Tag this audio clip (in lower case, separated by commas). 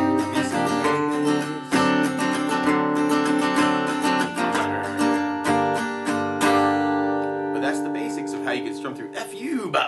strum, music, acoustic guitar, slide guitar, zither